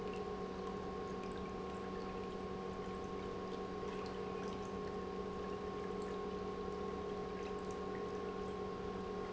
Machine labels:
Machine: pump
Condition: normal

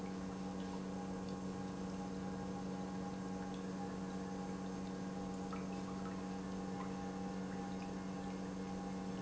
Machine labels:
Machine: pump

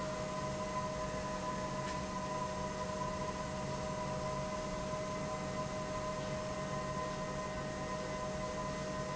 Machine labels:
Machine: pump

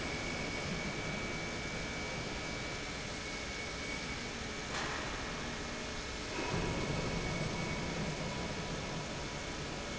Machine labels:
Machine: pump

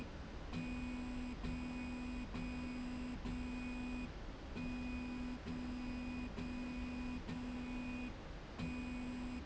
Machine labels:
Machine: slide rail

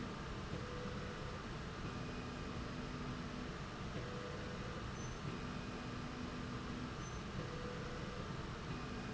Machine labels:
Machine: slide rail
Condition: normal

